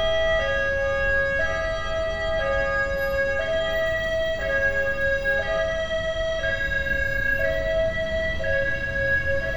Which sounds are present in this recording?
siren